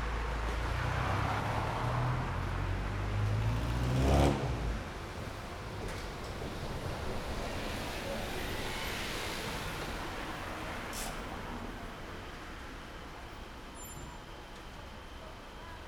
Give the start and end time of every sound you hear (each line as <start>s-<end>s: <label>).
0.0s-5.0s: car engine accelerating
0.0s-13.6s: car
0.0s-13.6s: car wheels rolling
6.1s-9.6s: bus wheels rolling
6.1s-15.9s: bus
7.2s-10.3s: bus engine accelerating
10.3s-15.9s: bus engine idling
13.5s-14.2s: bus brakes
15.2s-15.9s: people talking